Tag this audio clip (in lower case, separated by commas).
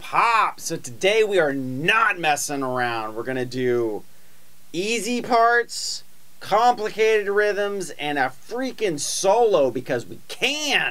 speech